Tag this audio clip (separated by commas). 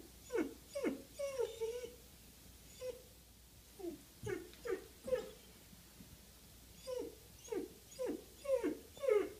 dog whimpering